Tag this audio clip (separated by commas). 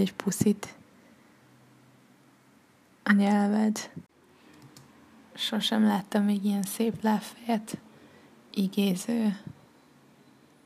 Speech